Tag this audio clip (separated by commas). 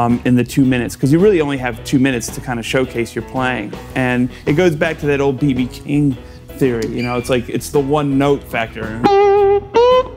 Strum, Speech, Music, Plucked string instrument, Electric guitar, Musical instrument, Guitar